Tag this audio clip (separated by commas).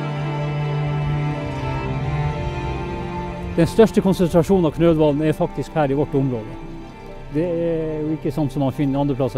Speech, Music